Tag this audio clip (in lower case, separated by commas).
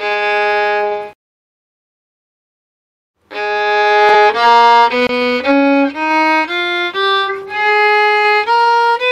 fiddle, music, musical instrument